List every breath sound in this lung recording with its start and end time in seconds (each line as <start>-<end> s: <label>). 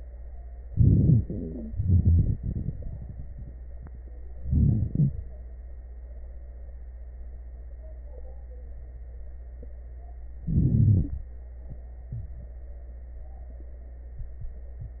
0.64-1.67 s: inhalation
0.66-1.63 s: crackles
1.66-3.51 s: exhalation
1.66-3.51 s: crackles
4.37-5.35 s: inhalation
4.37-5.35 s: crackles
10.40-11.38 s: inhalation
10.40-11.38 s: crackles